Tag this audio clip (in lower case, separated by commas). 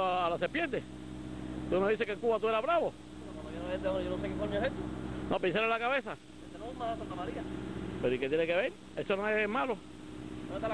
speech, outside, urban or man-made, outside, rural or natural